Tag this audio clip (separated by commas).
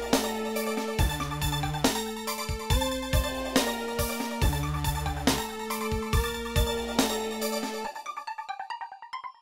Dubstep, Electronic music, Music